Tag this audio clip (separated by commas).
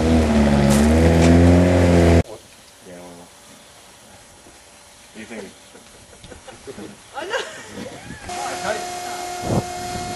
Speech